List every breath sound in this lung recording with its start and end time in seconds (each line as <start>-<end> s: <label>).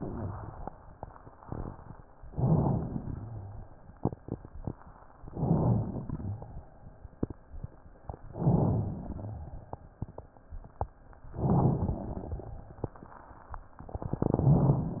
2.28-3.13 s: inhalation
2.28-3.13 s: rhonchi
3.15-3.79 s: exhalation
3.15-3.79 s: rhonchi
5.26-6.05 s: inhalation
5.26-6.05 s: rhonchi
6.09-6.63 s: exhalation
6.09-6.63 s: rhonchi
8.33-9.19 s: inhalation
8.33-9.19 s: rhonchi
9.21-9.82 s: exhalation
9.21-9.82 s: rhonchi
11.35-12.22 s: inhalation
11.35-12.22 s: rhonchi
12.24-12.84 s: exhalation
12.24-12.84 s: rhonchi